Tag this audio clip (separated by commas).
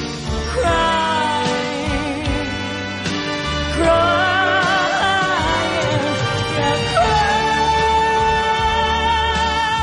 Music, Singing